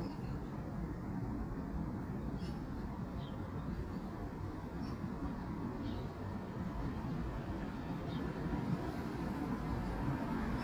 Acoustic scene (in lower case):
residential area